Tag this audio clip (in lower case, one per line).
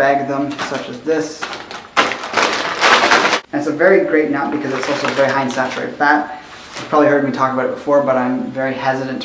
inside a small room
speech